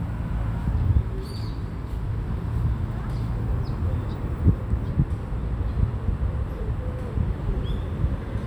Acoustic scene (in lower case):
residential area